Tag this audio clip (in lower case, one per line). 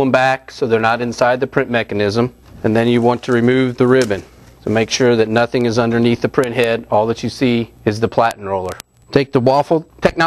speech